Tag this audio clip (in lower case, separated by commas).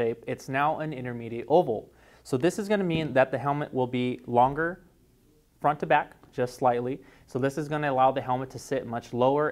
speech